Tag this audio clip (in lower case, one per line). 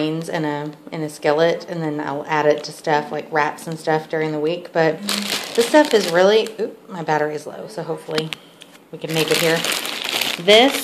speech